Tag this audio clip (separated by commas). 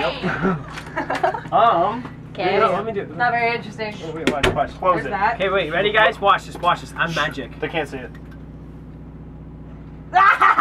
Speech